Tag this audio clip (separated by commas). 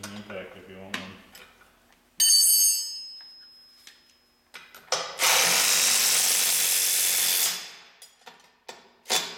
Speech